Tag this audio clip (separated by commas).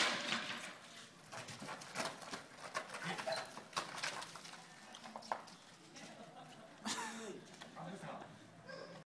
Animal, Dog, Whimper (dog), Domestic animals